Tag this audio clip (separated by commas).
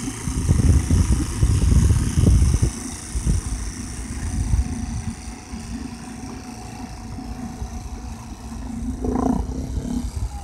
Vehicle, Motorboat